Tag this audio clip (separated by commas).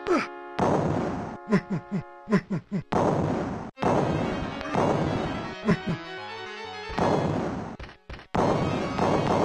Music